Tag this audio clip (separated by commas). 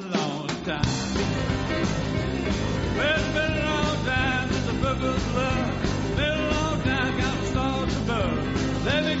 Music